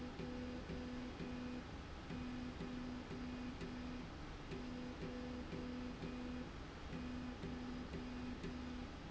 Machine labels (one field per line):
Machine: slide rail